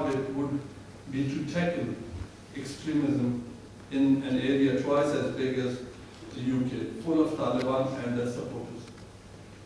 An adult male is speaking